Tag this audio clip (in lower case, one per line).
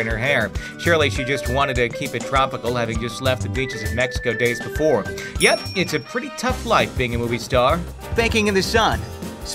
speech
music